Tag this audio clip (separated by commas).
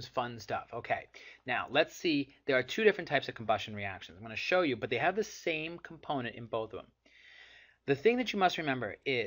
Speech